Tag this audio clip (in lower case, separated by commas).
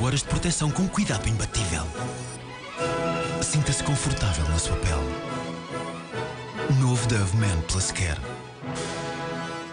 music, speech